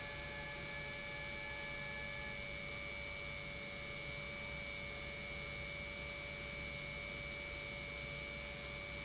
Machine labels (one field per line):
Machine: pump